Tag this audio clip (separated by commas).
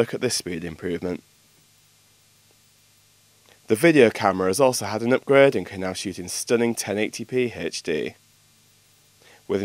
Speech